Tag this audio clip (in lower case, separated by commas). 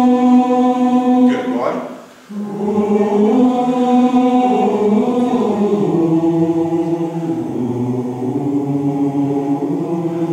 speech, singing